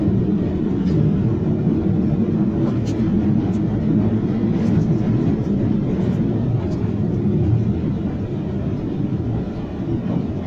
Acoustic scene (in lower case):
subway train